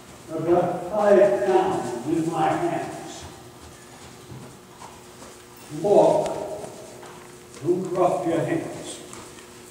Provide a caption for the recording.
A man speaking